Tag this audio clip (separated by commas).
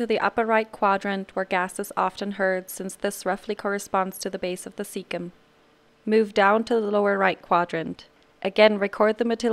Speech